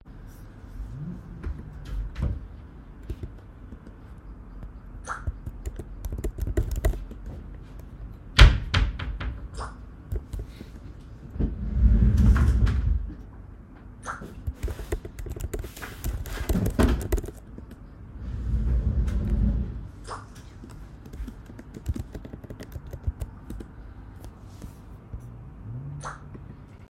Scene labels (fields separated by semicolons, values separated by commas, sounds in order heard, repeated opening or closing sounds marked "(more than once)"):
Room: office; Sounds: wardrobe or drawer (more than once), keyboard typing, phone ringing